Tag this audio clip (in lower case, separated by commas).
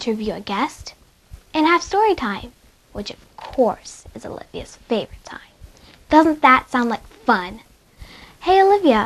speech